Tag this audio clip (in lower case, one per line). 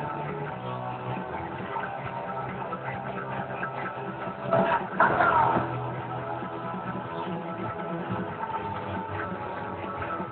music
speech